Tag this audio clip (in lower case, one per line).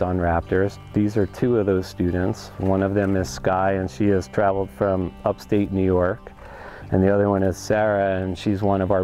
music
speech